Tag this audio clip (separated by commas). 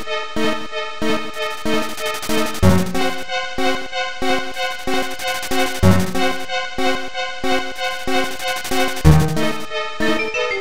Music